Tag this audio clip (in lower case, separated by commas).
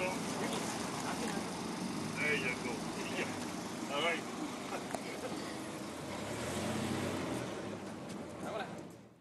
speech